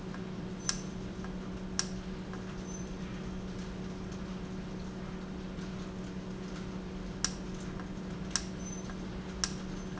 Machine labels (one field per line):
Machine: valve